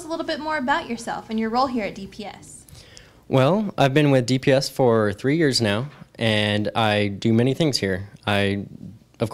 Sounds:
Speech

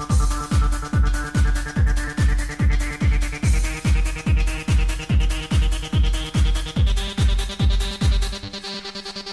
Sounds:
Music

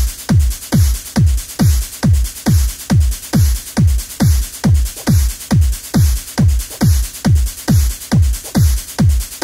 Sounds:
Trance music, Music, Techno

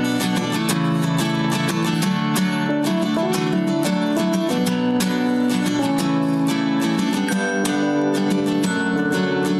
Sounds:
Music

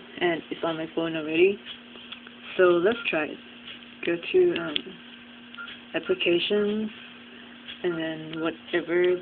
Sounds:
Speech

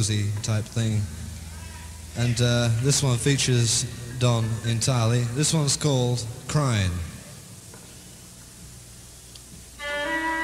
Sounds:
Speech, Music

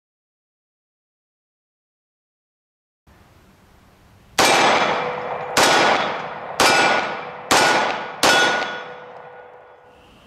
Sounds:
Silence

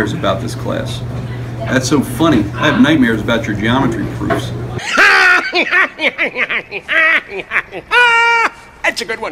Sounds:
inside a small room, Speech, inside a large room or hall

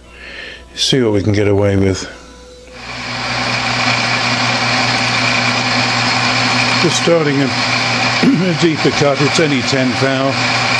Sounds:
Tools, Speech, Engine

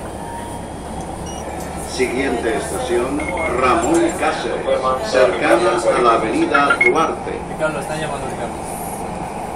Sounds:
Speech, metro

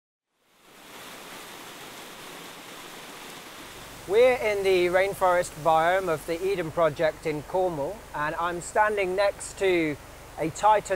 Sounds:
outside, rural or natural, Speech

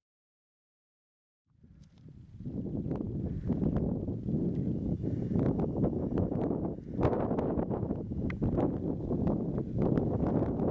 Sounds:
Rustle

